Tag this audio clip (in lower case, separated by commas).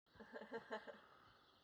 human voice, laughter